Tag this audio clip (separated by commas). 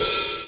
Hi-hat, Music, Musical instrument, Percussion, Cymbal